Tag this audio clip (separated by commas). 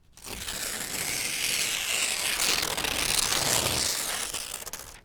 Tearing